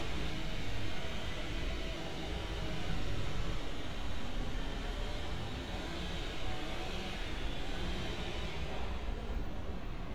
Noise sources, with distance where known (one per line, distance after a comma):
unidentified powered saw